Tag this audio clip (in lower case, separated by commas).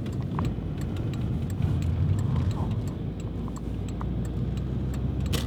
vehicle